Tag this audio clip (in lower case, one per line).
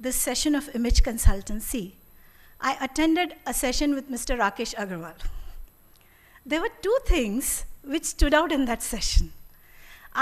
monologue
speech
female speech